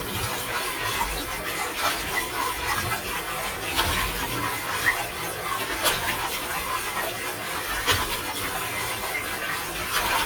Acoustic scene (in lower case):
kitchen